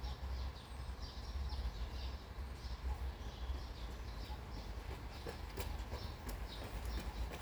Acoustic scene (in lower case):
park